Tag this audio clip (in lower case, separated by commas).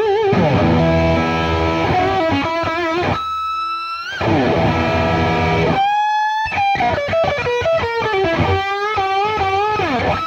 musical instrument, guitar, plucked string instrument, rock music, electric guitar, music